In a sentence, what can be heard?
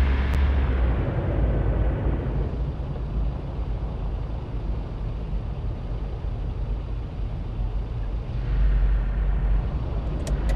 A large engine is running